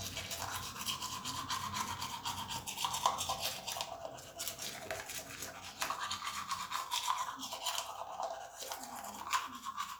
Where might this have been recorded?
in a restroom